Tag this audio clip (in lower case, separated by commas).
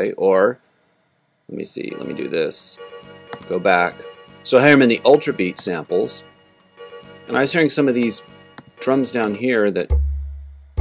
music, speech, musical instrument